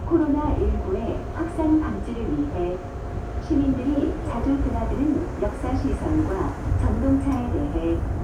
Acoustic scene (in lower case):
subway train